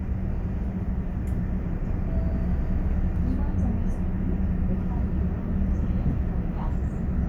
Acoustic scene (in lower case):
bus